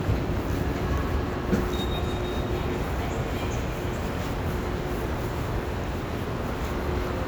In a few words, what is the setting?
subway station